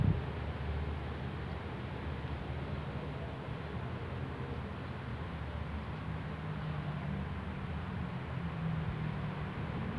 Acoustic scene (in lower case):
residential area